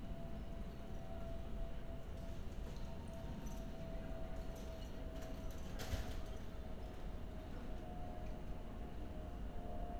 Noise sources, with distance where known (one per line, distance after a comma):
background noise